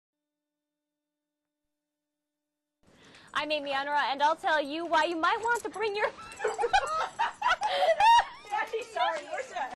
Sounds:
pets, Speech, Bow-wow, Dog, Animal

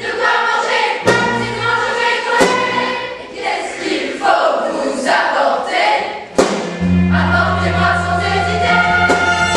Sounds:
Music

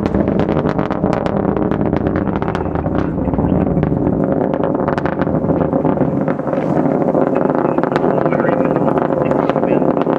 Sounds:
Speech, Vehicle

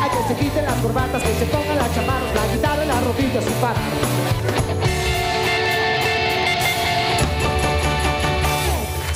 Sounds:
Rock and roll, Music

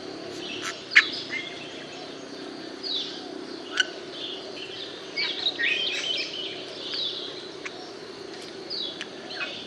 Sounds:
mynah bird singing

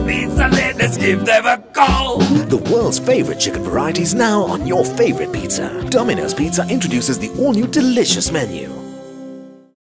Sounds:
Music, Speech

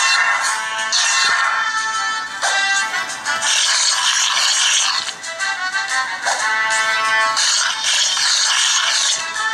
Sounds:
Music

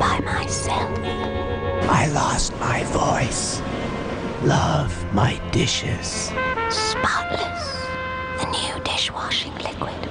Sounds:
Music, Speech

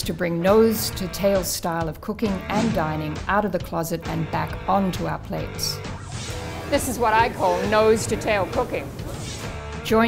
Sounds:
Speech

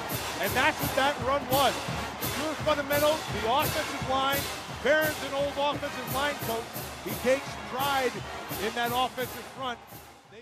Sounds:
Music, Speech

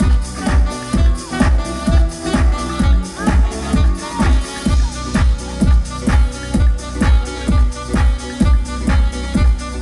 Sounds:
Speech, Music

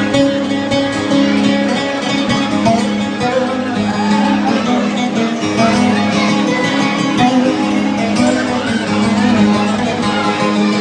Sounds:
Music, Speech

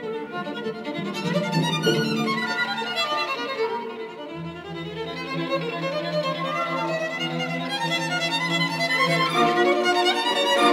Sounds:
Musical instrument, Music, fiddle

